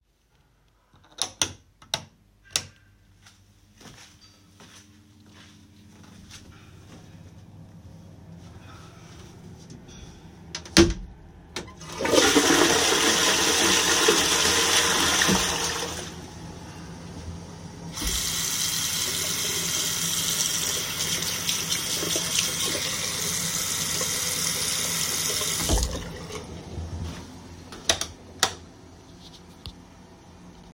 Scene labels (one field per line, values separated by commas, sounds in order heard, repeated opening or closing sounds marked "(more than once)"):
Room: bathroom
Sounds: light switch, footsteps, door, toilet flushing, running water